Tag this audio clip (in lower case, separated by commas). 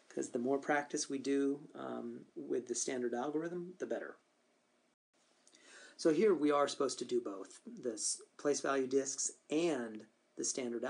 speech